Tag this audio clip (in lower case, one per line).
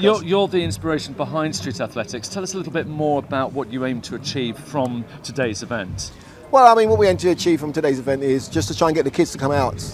speech
outside, urban or man-made